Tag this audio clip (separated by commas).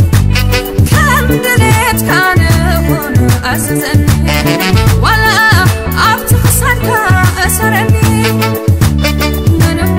Happy music, Soundtrack music, Music, Jazz